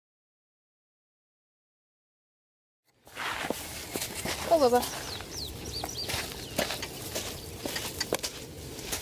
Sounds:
animal
outside, rural or natural
speech

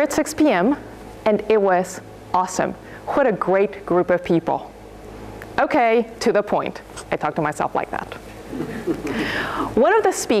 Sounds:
female speech
narration
speech

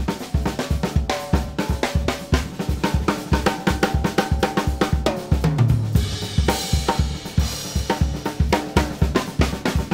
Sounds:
music
jazz
percussion
drum
snare drum
musical instrument

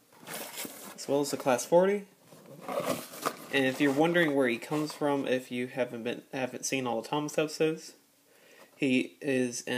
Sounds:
speech

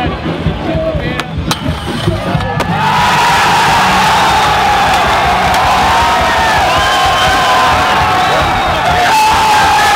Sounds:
whack

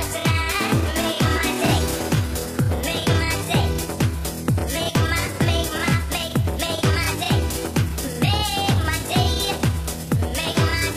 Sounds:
music

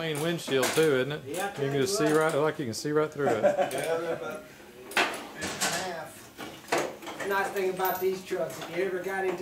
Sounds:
speech

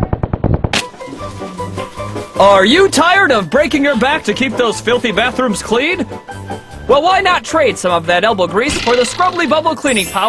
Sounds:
speech
music

